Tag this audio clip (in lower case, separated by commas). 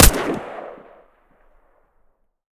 gunfire, explosion